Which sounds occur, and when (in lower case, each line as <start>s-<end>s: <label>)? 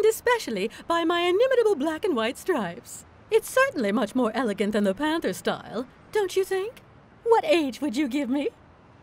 0.0s-0.6s: woman speaking
0.0s-9.0s: wind
0.7s-0.8s: breathing
0.9s-3.0s: woman speaking
3.3s-5.8s: woman speaking
6.1s-6.8s: woman speaking
7.2s-8.5s: woman speaking